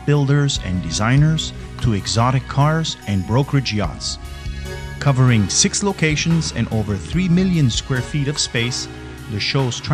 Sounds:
Music, Speech

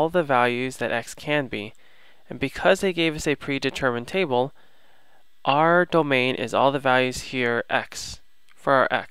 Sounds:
Speech

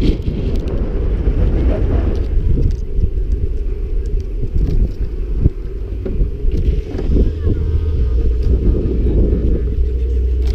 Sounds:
Vehicle

